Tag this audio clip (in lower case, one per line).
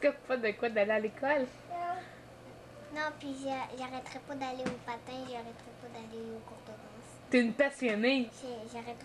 speech